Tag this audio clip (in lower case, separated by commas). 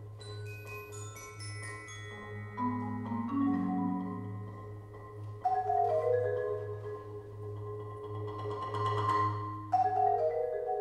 vibraphone, music, orchestra, percussion, musical instrument, xylophone